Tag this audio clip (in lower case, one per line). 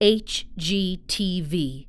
speech
woman speaking
human voice